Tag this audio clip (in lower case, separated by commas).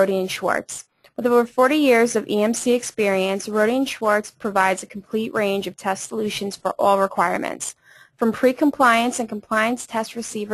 speech